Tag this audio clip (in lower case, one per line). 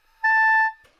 musical instrument
music
wind instrument